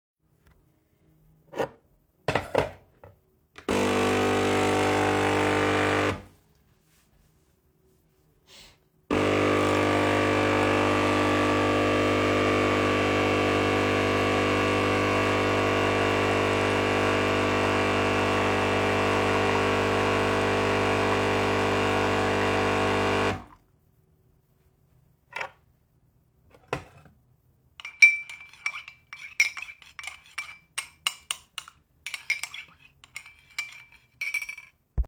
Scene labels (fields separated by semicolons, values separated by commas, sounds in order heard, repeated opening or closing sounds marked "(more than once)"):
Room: kitchen; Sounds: cutlery and dishes, coffee machine